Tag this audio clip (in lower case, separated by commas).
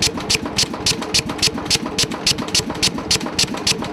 tools